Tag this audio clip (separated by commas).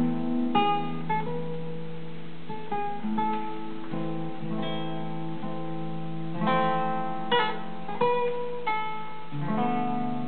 Music